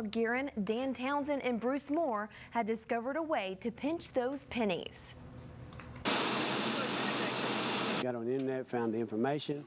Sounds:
waterfall
speech

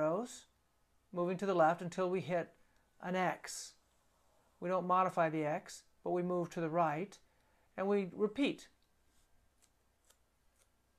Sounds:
speech
inside a small room

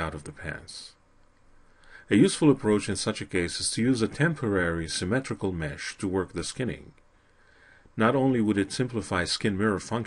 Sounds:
speech

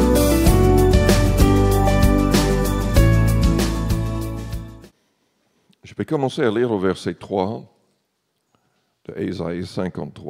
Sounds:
music
speech

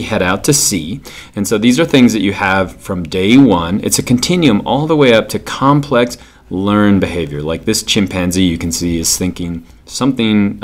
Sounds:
speech

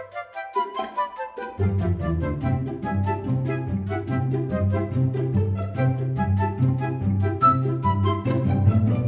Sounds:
music

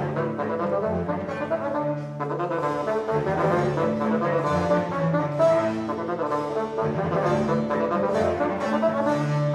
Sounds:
playing bassoon

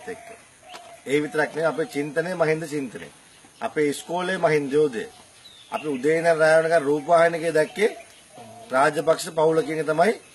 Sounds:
male speech
speech

